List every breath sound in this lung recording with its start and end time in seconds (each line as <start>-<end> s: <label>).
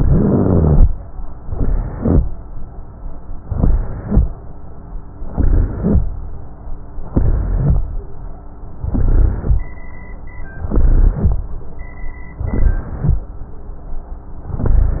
0.00-0.86 s: inhalation
0.00-0.86 s: rhonchi
1.48-2.22 s: inhalation
1.48-2.22 s: rhonchi
3.51-4.25 s: inhalation
3.51-4.25 s: rhonchi
5.29-6.04 s: inhalation
5.29-6.04 s: rhonchi
7.11-7.86 s: inhalation
7.11-7.86 s: rhonchi
8.84-9.58 s: inhalation
8.84-9.58 s: rhonchi
10.66-11.40 s: inhalation
10.66-11.40 s: rhonchi
12.52-13.26 s: inhalation
12.52-13.26 s: rhonchi